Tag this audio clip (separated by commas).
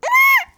Human voice, sobbing